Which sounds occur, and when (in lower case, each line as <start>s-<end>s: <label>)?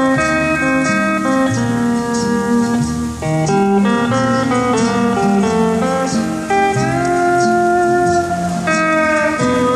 0.0s-9.7s: music
7.0s-7.1s: tick